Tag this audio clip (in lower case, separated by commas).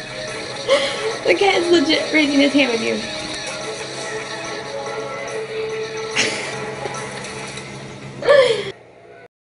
speech, music